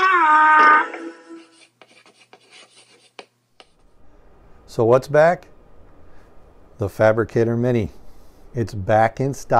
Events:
[0.00, 9.55] mechanisms
[0.01, 0.93] woman speaking
[0.56, 1.69] brief tone
[1.28, 1.63] writing
[1.73, 3.21] writing
[3.59, 3.85] writing
[4.64, 5.39] male speech
[5.37, 5.46] tick
[6.09, 6.35] breathing
[6.82, 7.91] male speech
[8.05, 8.48] breathing
[8.48, 9.55] male speech

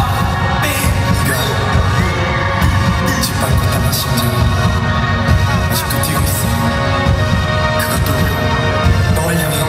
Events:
[0.00, 9.65] music
[0.58, 2.44] man speaking
[2.95, 4.36] man speaking
[5.56, 6.39] man speaking
[7.67, 9.65] man speaking

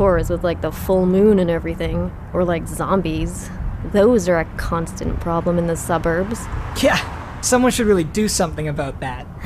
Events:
[0.00, 2.06] female speech
[0.00, 9.19] conversation
[0.00, 9.45] motor vehicle (road)
[2.31, 3.52] female speech
[3.88, 6.44] female speech
[6.75, 6.98] man speaking
[7.41, 9.22] man speaking

